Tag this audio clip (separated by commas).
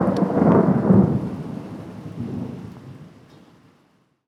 Thunder, Rain, Water, Thunderstorm